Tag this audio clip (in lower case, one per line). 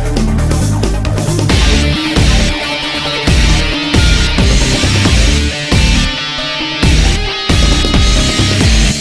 rock music
angry music
music